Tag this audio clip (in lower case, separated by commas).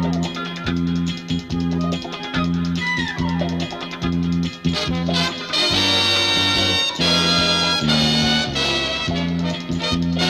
music, funny music